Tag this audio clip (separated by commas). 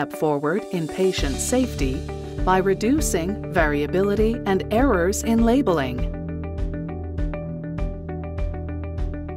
Speech, Music